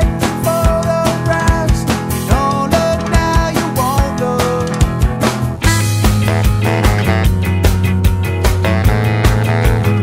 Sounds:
jazz, music

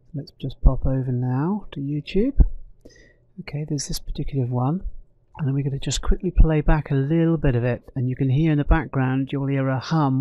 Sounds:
speech

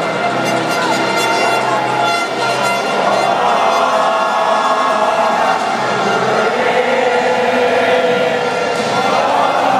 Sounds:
choir, music

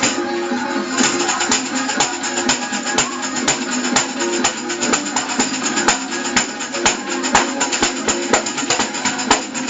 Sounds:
playing tambourine

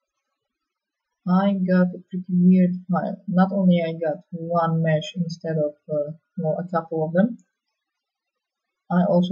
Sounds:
speech

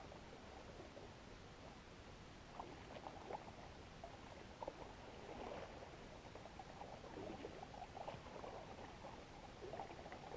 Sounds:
water vehicle, vehicle

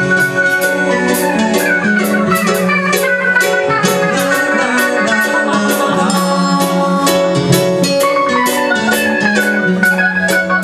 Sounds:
rock music, progressive rock, music

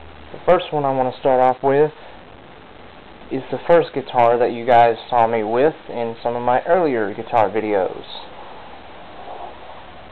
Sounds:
speech

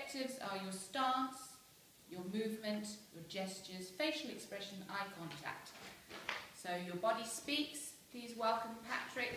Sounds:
narration, speech, female speech

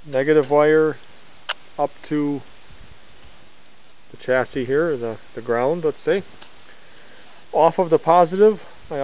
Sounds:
speech

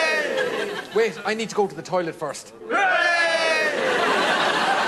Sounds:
speech

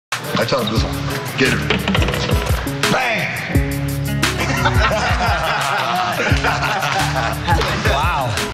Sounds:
speech, music

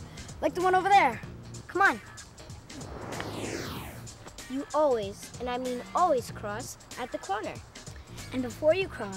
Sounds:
speech, music

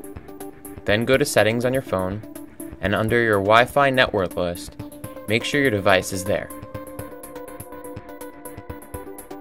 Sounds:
music, speech

